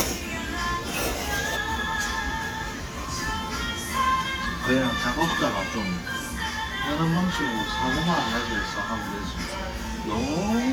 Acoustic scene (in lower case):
restaurant